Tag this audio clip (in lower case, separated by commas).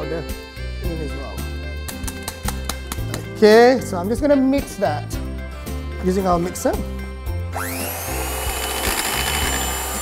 music, inside a small room, speech